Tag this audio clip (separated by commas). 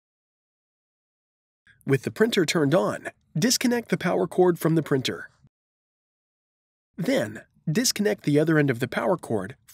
Speech